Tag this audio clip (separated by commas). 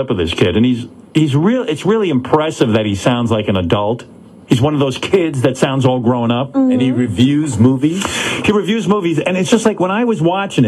Speech